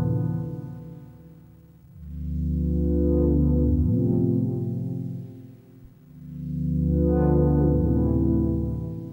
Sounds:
music

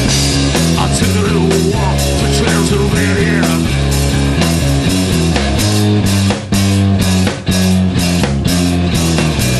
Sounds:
drum, blues, musical instrument, rock music, music, punk rock, percussion

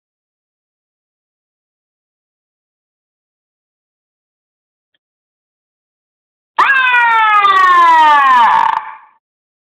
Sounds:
vehicle horn

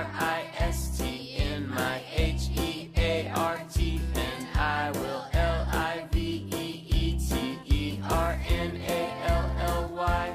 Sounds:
christmas music, music

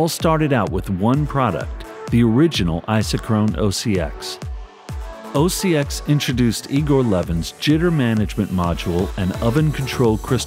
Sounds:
speech, music

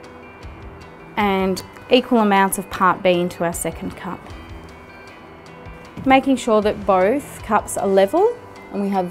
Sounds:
speech, music

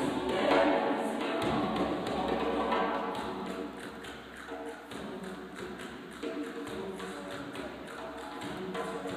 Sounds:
orchestra, music, classical music

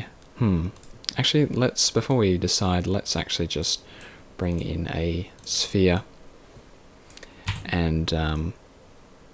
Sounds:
speech

